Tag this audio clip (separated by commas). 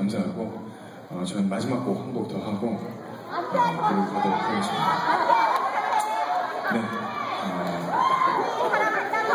Speech